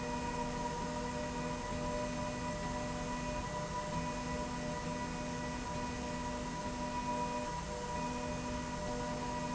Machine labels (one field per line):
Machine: slide rail